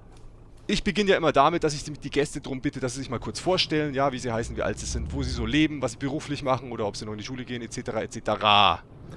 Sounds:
Speech, Vehicle

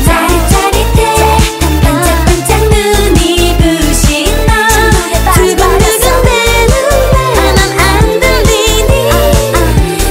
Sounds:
Music

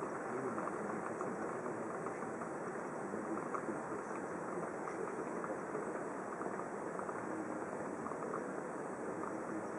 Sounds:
Speech

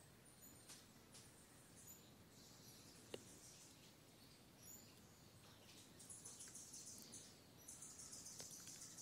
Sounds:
Speech

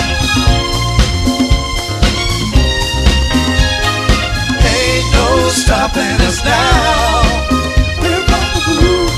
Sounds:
Music

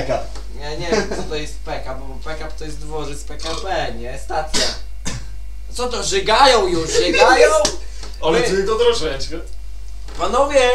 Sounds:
Speech

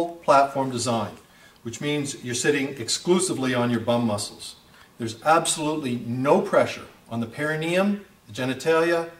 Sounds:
Speech

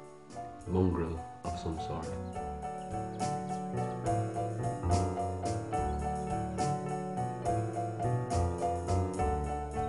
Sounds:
Speech, Music

